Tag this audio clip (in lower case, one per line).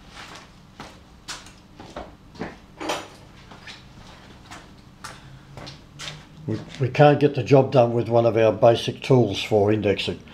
speech